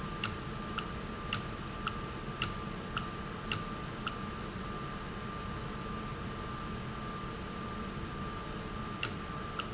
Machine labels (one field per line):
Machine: valve